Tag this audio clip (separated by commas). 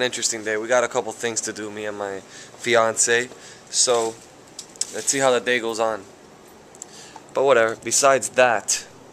Speech